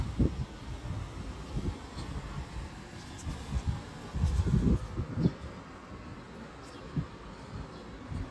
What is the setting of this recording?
street